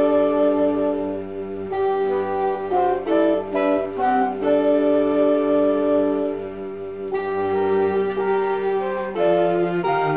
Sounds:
Bowed string instrument, Music

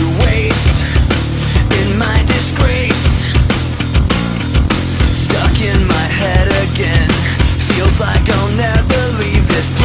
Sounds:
Music

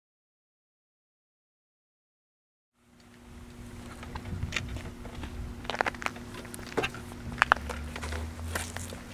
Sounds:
Bicycle

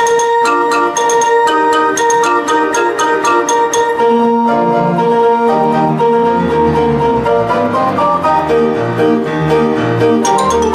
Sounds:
Music

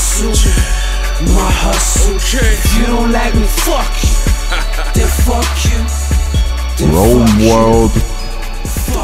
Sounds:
Music, Hip hop music

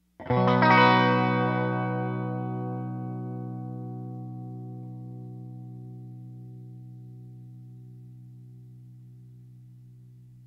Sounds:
Music, Guitar, Plucked string instrument, Musical instrument

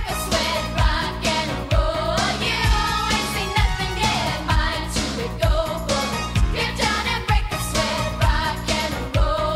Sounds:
Music

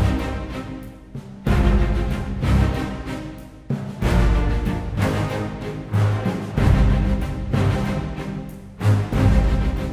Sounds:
Music

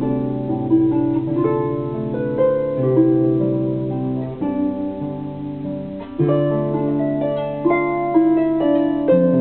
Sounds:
Music

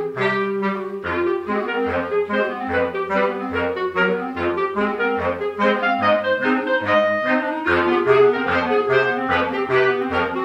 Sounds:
Brass instrument, Saxophone, playing clarinet, Clarinet

